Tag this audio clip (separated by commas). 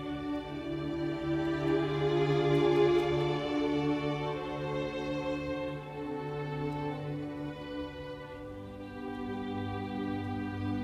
Musical instrument, Music, Violin